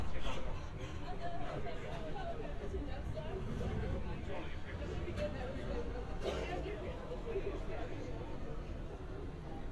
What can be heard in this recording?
person or small group talking